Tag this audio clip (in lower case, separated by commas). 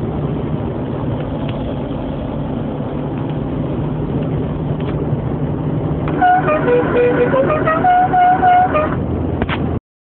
outside, urban or man-made, music